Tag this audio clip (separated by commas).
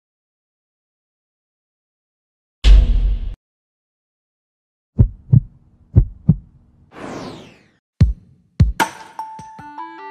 Music